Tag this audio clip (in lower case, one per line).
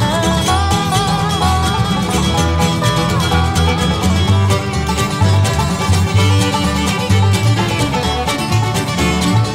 pop music
music
bluegrass